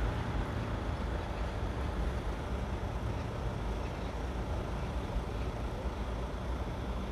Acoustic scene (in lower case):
street